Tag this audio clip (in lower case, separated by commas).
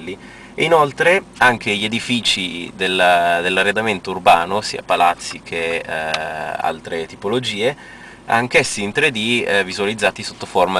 speech, outside, rural or natural